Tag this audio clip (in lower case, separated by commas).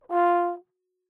brass instrument, musical instrument, music